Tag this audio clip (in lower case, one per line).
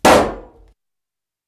explosion